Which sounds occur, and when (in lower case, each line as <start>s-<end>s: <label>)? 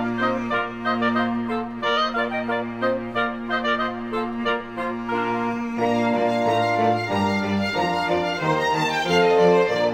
0.0s-9.9s: music